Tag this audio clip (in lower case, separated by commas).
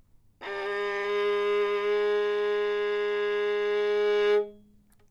music, bowed string instrument, musical instrument